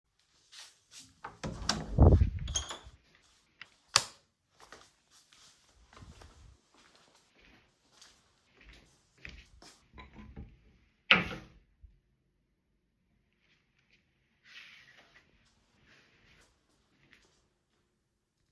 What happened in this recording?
I entered my bedroom and flipped the light switch. Then I went to my wardrobe and closed its door. At the end I moved the curtains.